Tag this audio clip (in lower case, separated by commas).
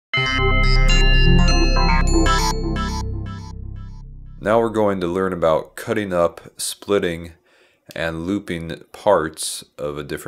synthesizer